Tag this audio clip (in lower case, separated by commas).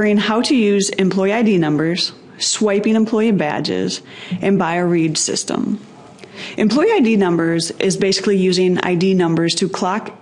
speech